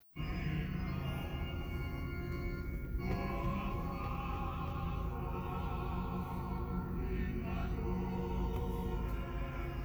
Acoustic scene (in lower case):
car